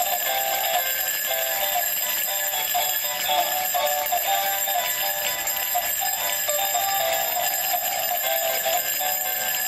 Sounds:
Jingle bell

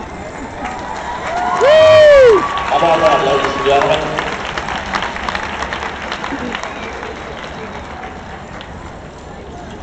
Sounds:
Clip-clop, Speech

